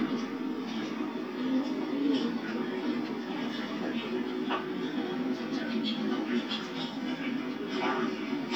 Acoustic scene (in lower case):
park